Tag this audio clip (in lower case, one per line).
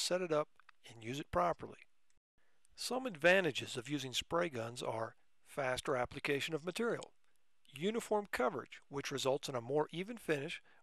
speech